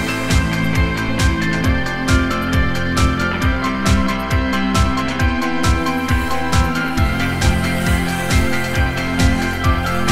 Upbeat music is playing and a power tool is running